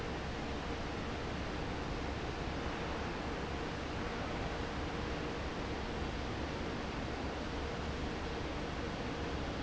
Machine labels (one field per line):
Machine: fan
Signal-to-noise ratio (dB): -6 dB